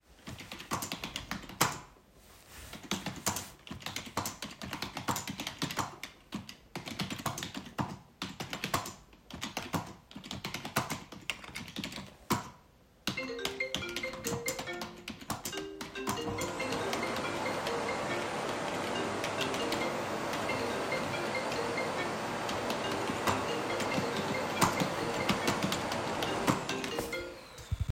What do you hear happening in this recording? I was typing on my keyboard and got a phone call, at the same time I heard the vacuum cleaner go off in the other room.